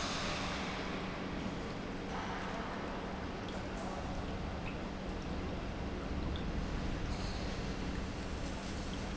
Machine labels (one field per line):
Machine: pump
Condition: normal